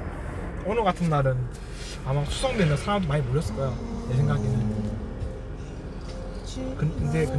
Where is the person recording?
in a car